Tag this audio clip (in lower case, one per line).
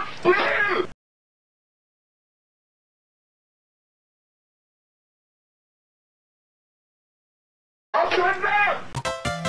music
speech